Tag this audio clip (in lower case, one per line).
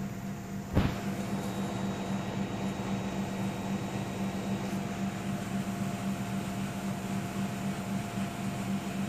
inside a small room